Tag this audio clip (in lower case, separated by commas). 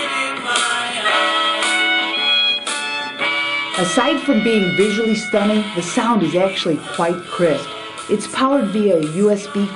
music, speech